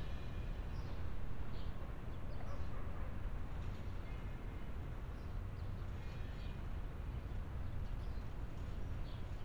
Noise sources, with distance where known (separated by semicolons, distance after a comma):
background noise